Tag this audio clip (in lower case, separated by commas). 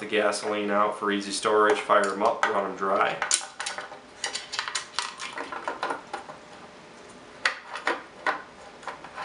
speech, tools